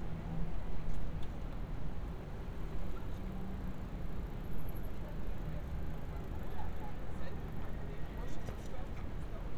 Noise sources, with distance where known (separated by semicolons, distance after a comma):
person or small group talking